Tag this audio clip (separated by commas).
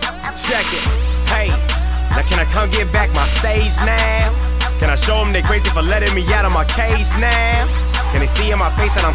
Music